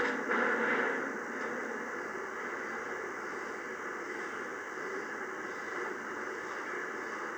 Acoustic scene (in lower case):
subway train